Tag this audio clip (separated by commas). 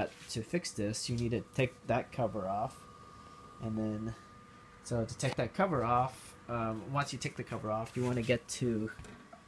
Speech